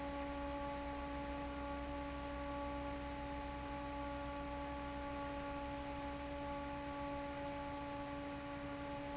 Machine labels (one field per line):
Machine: fan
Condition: normal